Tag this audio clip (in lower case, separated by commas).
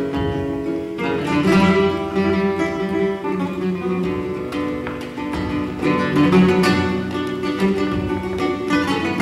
plucked string instrument, flamenco, musical instrument, guitar, music